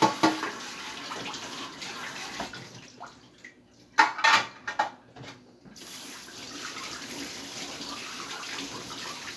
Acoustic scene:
kitchen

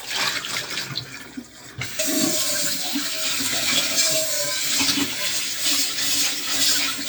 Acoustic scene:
kitchen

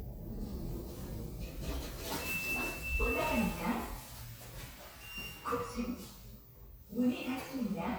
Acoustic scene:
elevator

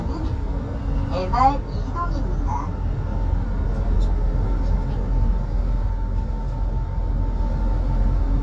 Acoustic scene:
bus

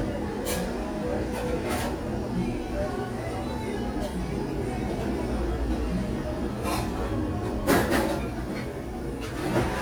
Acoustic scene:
cafe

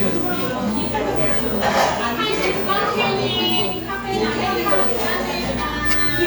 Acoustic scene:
cafe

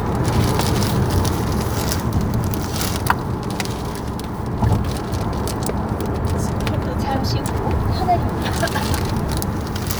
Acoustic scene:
car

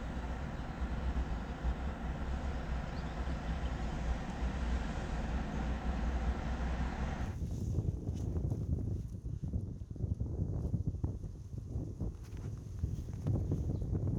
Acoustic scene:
residential area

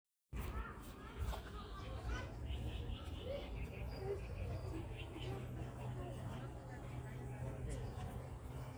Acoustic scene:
park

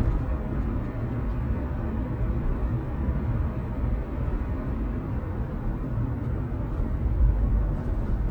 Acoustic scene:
car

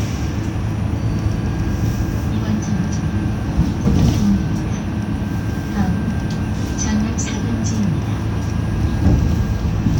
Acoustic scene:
bus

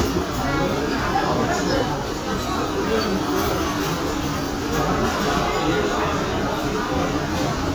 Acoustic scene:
restaurant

